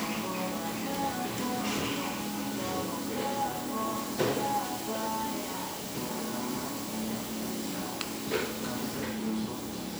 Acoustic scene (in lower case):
cafe